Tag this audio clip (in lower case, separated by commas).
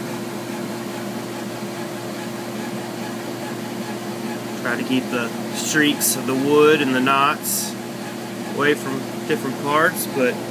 speech